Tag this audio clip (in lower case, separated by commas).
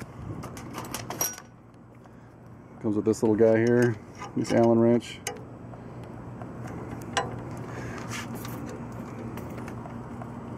speech